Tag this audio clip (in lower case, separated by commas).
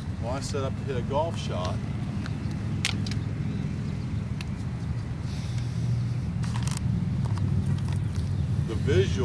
speech